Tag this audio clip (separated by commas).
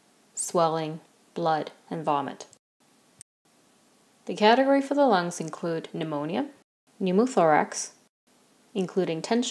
Speech